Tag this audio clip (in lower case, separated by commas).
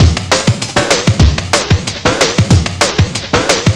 scratching (performance technique), music, musical instrument